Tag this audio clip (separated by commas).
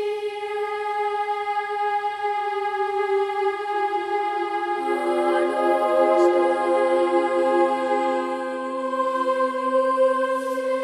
Music